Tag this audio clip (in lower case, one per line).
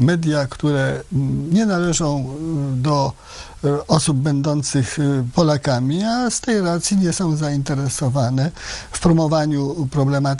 speech